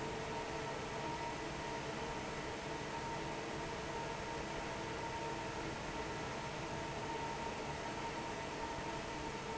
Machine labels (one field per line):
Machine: fan